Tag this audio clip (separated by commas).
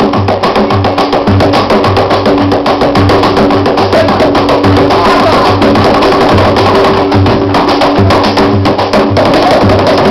Music, Dance music, Flamenco